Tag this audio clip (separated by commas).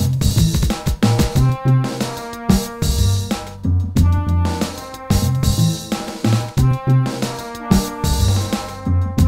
Music